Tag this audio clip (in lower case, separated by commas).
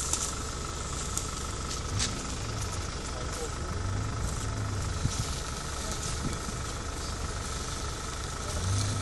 outside, rural or natural, vehicle, car, speech